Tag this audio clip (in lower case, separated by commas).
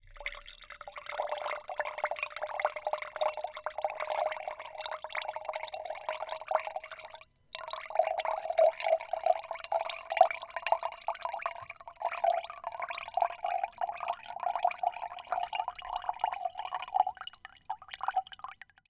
pour, liquid, fill (with liquid), trickle